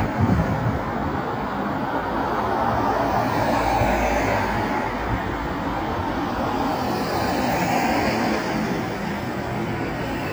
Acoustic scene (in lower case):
street